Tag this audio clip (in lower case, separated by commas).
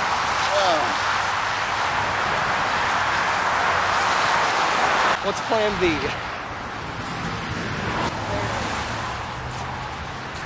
vehicle, speech